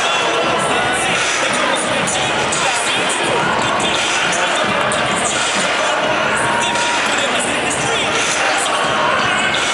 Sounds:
speech, music

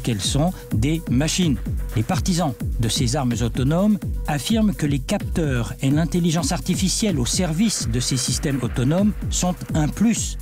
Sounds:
speech, music

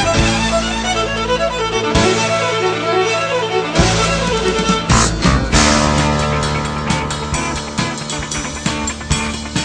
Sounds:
music, rhythm and blues

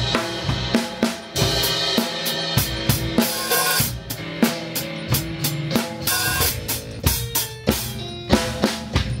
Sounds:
pop music, music

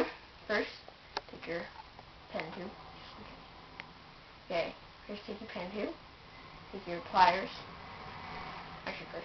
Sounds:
speech

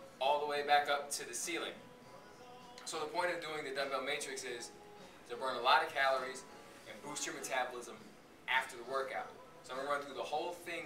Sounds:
speech, music

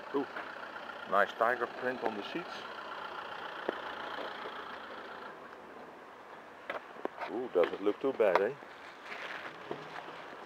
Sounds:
speech

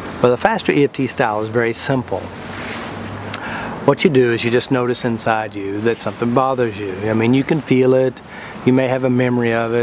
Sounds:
speech

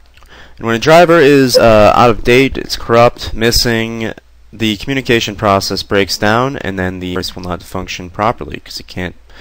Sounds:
speech

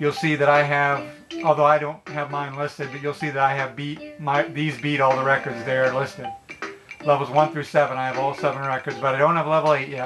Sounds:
speech, background music, music

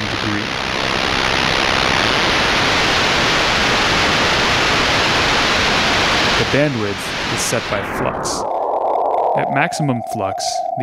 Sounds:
white noise, speech

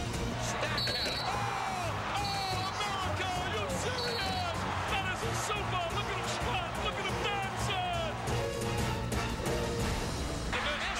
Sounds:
speech, music

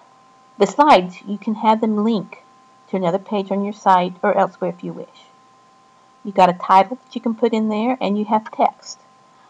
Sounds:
narration

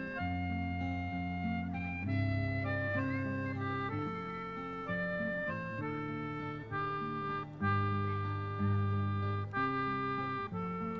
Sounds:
music

